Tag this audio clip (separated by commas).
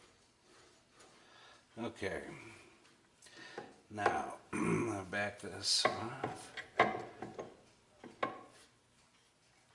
Speech